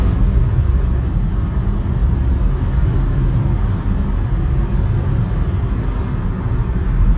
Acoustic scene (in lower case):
car